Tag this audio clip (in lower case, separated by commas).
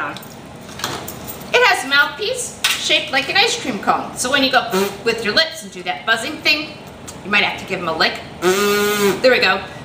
speech